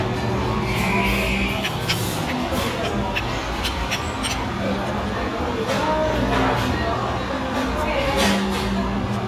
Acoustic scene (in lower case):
restaurant